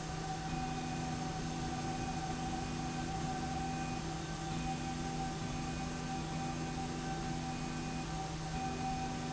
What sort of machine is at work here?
slide rail